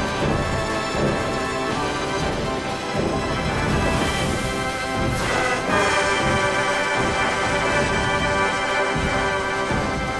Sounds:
Music

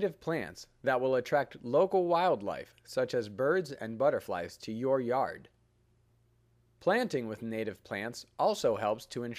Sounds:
Speech

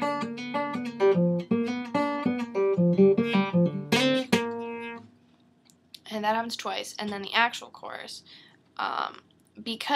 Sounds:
Guitar, Plucked string instrument, Music, Musical instrument, Speech, Strum

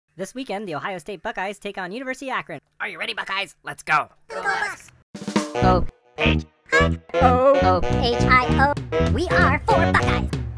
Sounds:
Music, Speech

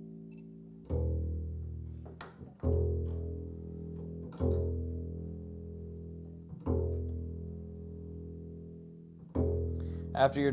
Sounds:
playing double bass

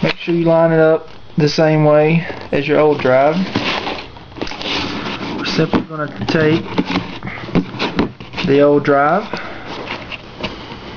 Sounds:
Speech

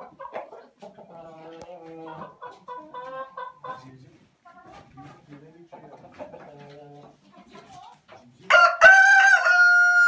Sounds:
cock-a-doodle-doo, Animal, rooster

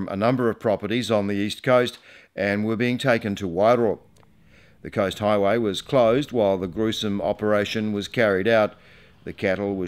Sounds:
Speech

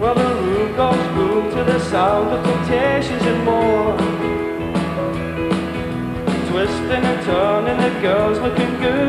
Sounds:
Music

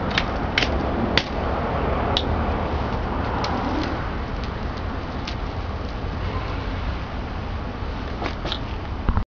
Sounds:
Vehicle, Bicycle

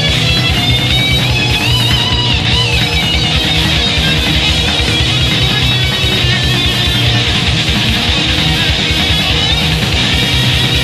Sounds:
Music, Heavy metal

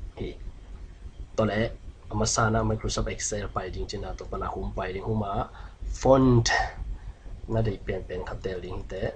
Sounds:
Speech

